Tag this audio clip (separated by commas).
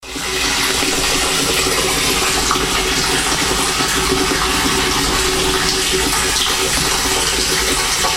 Liquid